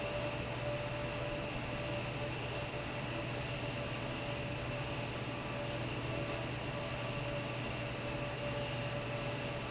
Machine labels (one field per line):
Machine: fan